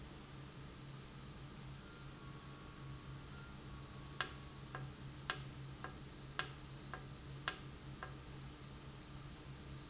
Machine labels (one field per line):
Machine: valve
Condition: normal